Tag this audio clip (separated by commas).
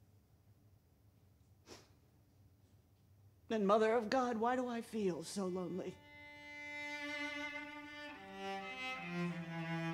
Music, Speech